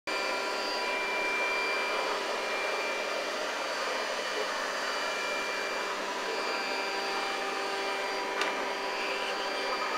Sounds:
inside a small room

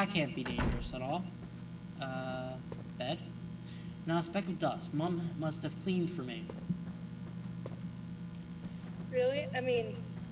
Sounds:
speech

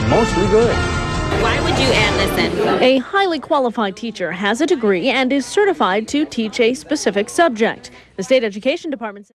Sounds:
speech, music

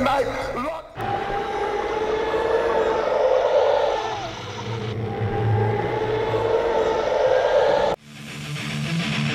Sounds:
sampler, speech, music

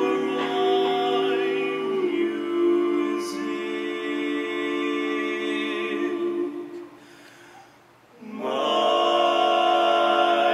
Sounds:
music, a capella

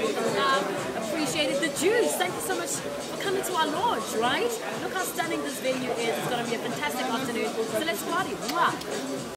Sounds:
speech

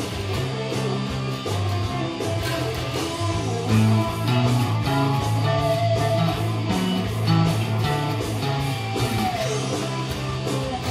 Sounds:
plucked string instrument, bass guitar, music, guitar, musical instrument

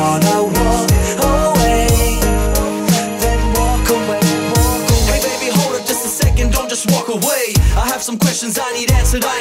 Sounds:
music

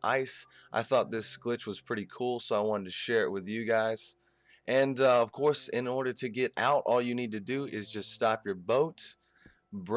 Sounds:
speech

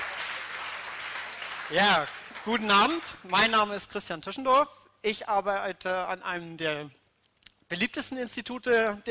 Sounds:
speech

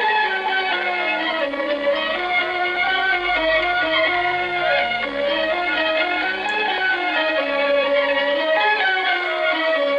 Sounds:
soundtrack music, music

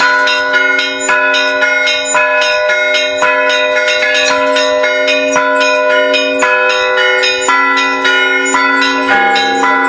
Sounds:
change ringing (campanology)

